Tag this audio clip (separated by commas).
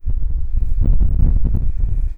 Wind